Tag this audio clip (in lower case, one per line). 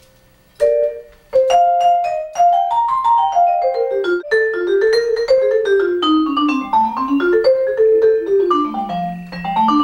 playing vibraphone